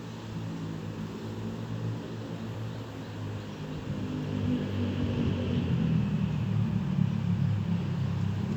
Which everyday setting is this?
residential area